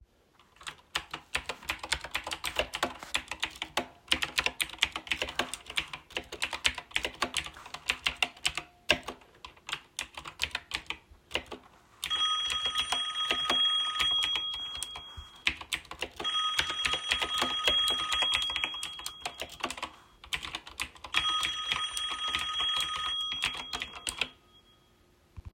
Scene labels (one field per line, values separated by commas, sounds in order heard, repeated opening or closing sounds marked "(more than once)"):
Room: office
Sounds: keyboard typing, phone ringing